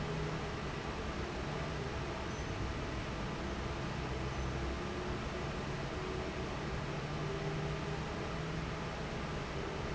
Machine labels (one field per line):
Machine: fan